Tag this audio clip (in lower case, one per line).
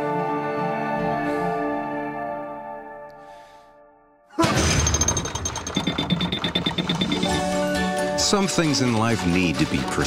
music
speech